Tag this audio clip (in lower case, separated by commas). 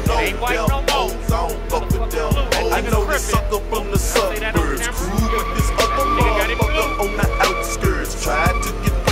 music, car passing by, speech